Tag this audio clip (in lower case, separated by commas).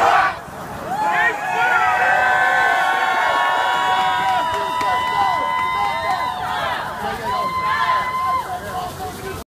speech